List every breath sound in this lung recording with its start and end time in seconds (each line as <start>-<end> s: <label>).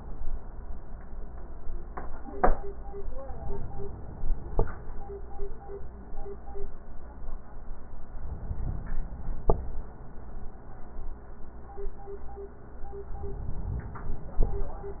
3.18-4.57 s: inhalation
8.12-9.51 s: inhalation
13.09-14.48 s: inhalation